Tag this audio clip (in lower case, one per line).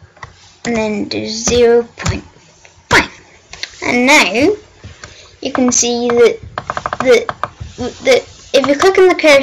speech